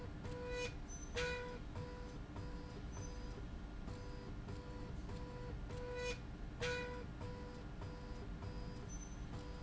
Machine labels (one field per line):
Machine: slide rail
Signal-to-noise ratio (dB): 6 dB